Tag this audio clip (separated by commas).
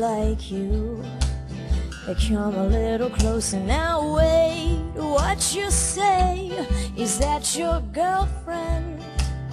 Music